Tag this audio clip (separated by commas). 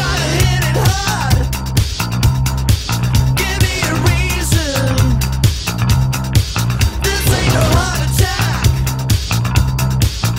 Music